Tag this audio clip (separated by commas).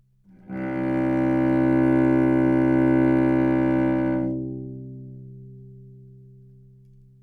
Music, Musical instrument, Bowed string instrument